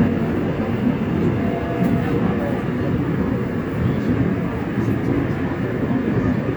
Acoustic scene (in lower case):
subway train